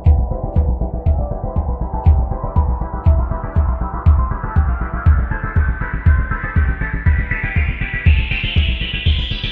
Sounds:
electronic music, techno, music

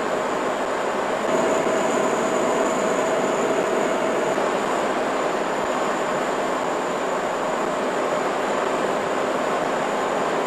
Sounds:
wind noise (microphone)

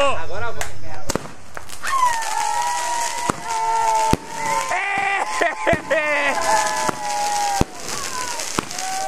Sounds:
lighting firecrackers

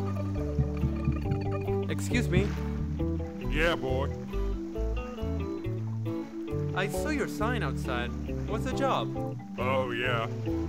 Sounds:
speech, music

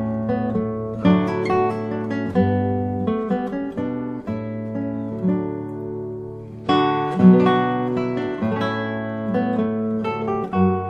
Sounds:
musical instrument, music, guitar, plucked string instrument

